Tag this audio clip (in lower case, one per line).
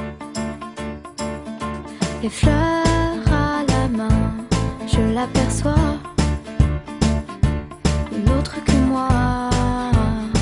music